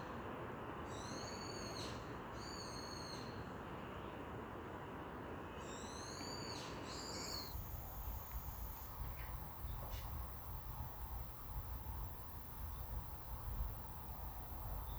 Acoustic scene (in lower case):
park